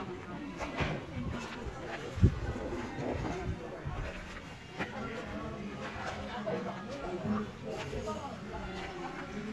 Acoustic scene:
park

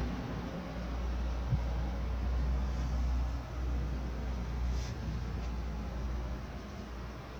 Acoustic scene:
residential area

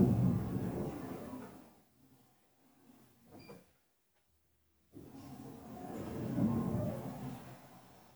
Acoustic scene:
elevator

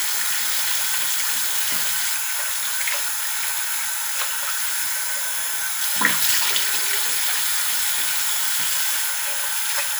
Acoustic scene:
restroom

